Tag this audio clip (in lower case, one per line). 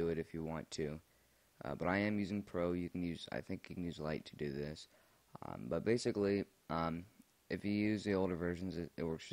speech